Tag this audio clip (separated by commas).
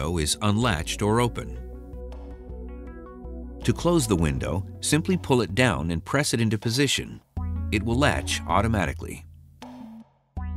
Speech, Music